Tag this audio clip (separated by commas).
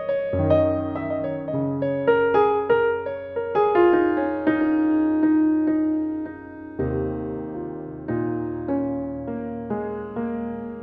Electric piano, Music